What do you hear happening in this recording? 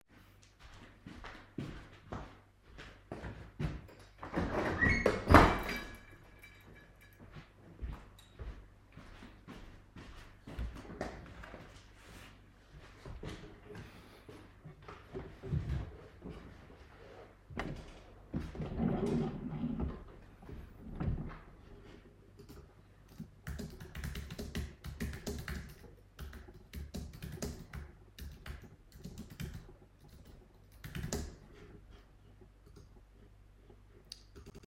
I stood up from my desk and walked to a window, opened it, and then went back to my desk and sat down at my desk again. I withdrew the keyboard holder under my desk, and then typed by using my keyboard.